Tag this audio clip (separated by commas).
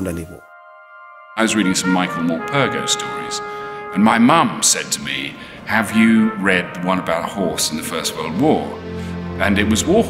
Music, Speech